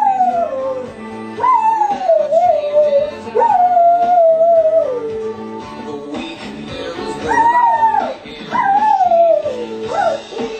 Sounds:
whimper (dog)
animal
howl
music
pets
dog

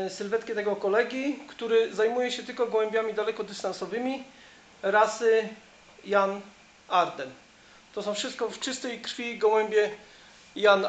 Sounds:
inside a small room
speech

